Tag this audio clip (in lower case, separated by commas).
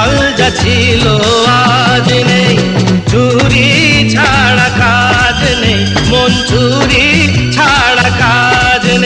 music of bollywood, music, singing